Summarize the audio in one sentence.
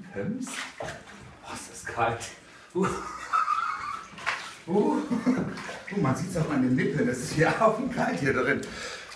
An adult male is speaking and water is splashing